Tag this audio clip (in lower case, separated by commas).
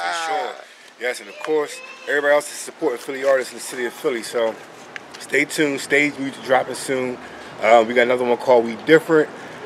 speech